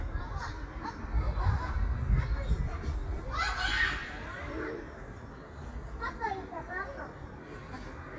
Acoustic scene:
park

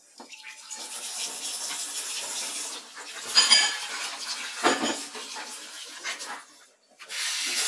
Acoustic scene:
kitchen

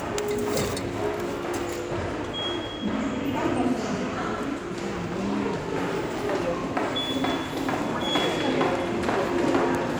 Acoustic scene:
subway station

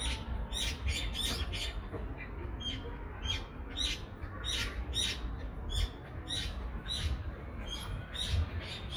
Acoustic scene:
residential area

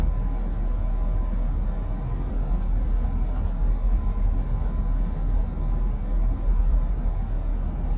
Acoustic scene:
bus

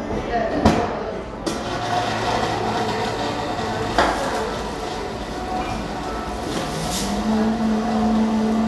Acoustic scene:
cafe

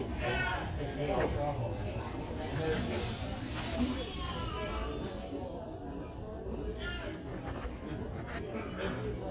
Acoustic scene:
crowded indoor space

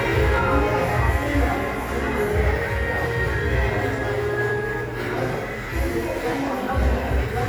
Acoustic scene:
crowded indoor space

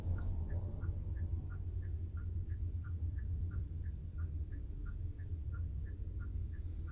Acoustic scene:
car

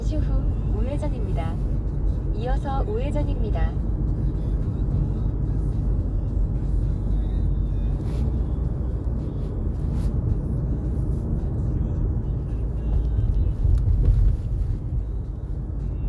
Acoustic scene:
car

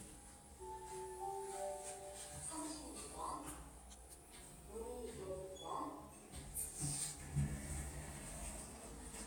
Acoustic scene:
elevator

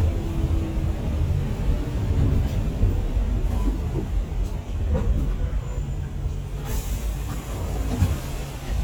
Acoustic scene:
bus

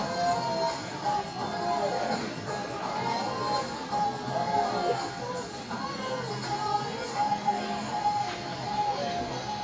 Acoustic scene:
crowded indoor space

